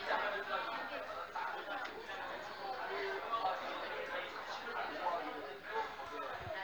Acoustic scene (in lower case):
crowded indoor space